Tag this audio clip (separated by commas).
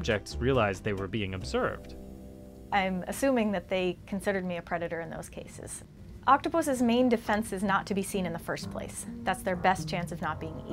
Music, Speech